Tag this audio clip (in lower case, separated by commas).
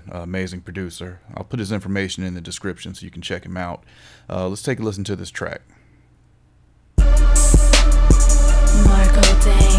hip hop music, music, speech